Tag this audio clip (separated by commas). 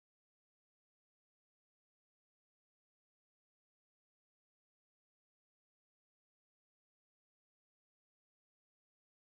Music, Disco